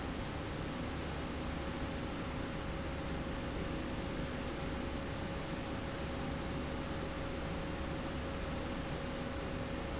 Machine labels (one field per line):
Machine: slide rail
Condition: normal